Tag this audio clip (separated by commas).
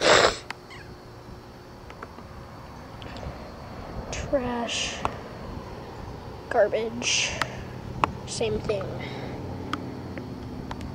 Vehicle, Speech